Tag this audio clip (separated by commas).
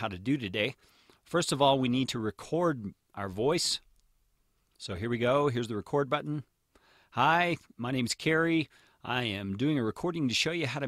Speech